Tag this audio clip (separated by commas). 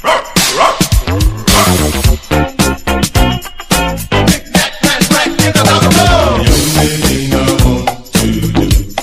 Bow-wow, Music